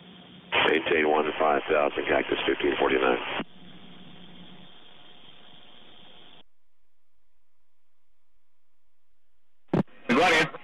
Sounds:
Speech

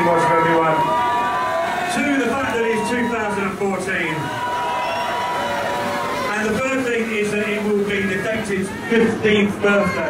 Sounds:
Speech

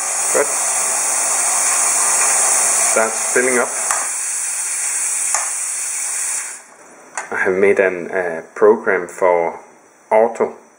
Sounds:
Hiss, Steam

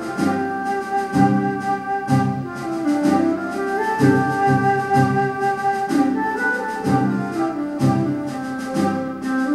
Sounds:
Music, Musical instrument, Piano, inside a large room or hall, Keyboard (musical)

